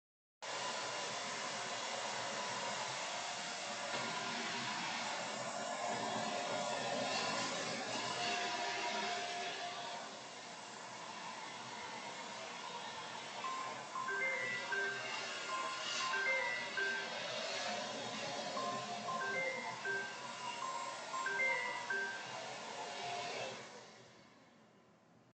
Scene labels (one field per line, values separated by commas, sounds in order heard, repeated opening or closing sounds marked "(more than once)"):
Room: bedroom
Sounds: vacuum cleaner, phone ringing